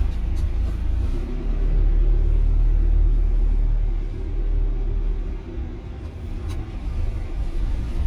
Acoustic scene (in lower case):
car